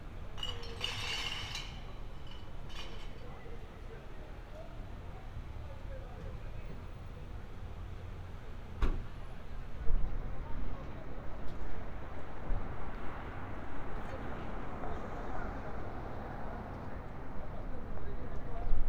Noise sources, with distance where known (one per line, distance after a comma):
person or small group talking